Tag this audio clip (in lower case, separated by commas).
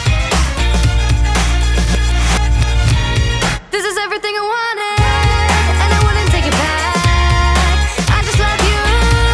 rhythm and blues, music